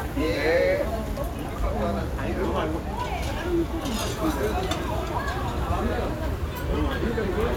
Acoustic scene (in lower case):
restaurant